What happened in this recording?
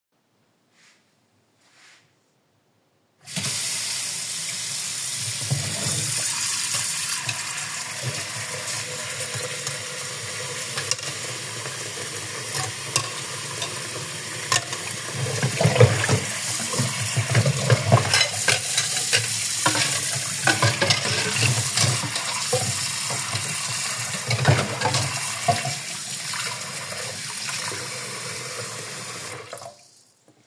I was washing the dishes and utensils in the kitched using the sink.